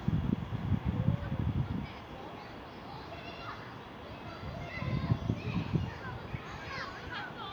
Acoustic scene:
residential area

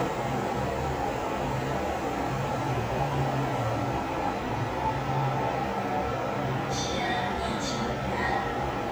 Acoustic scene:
elevator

